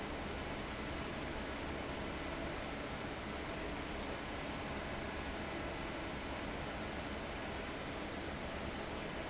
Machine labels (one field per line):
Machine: fan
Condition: abnormal